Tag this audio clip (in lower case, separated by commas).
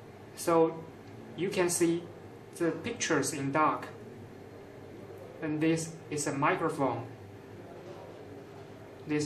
speech, inside a small room